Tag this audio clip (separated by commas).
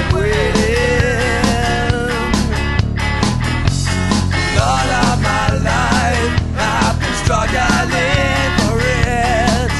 Rock music, Music